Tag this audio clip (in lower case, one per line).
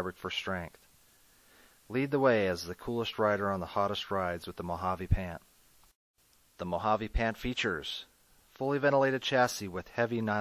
speech